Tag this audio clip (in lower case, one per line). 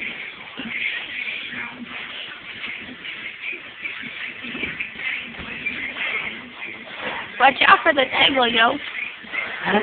music
speech